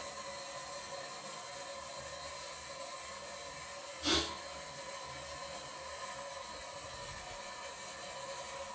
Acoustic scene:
restroom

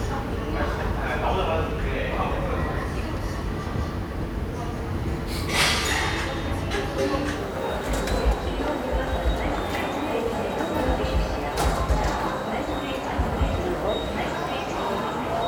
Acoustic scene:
subway station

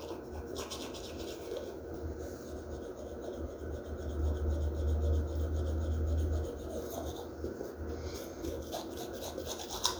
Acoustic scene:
restroom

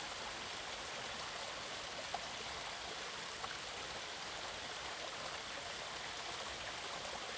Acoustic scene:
park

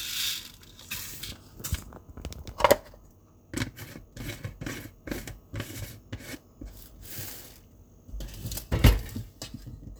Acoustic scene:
kitchen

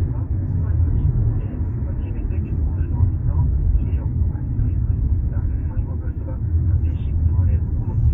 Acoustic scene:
car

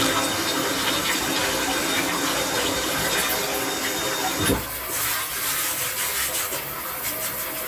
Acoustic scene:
restroom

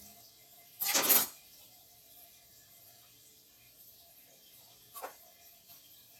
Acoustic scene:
kitchen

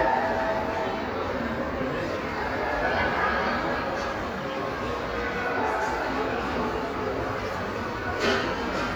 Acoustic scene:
crowded indoor space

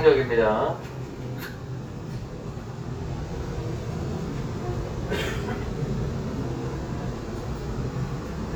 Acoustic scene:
subway train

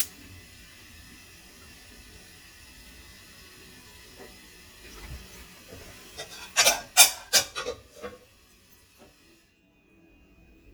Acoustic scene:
kitchen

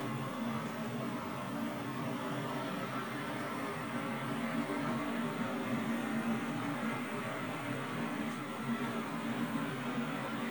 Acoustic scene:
kitchen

